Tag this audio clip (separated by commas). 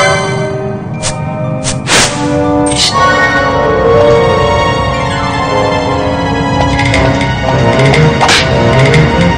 Video game music